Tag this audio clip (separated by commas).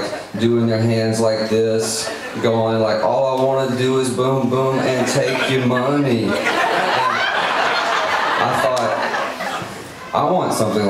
Speech